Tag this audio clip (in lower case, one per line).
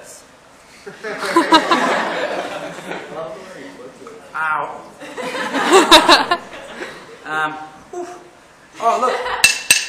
speech